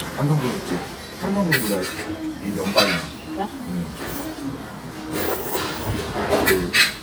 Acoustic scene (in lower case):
restaurant